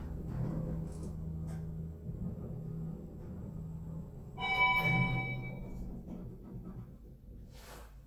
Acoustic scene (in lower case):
elevator